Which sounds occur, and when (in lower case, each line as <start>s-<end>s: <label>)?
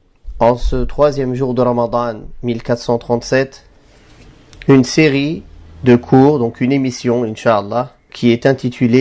0.0s-9.0s: mechanisms
0.3s-2.3s: male speech
2.4s-3.6s: male speech
3.7s-4.2s: breathing
4.5s-4.7s: generic impact sounds
4.7s-5.5s: male speech
5.8s-7.9s: male speech
8.1s-8.2s: generic impact sounds
8.1s-9.0s: male speech